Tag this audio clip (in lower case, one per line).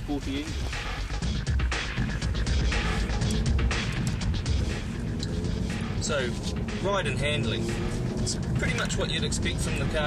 car
motor vehicle (road)
speech
music
vehicle
car passing by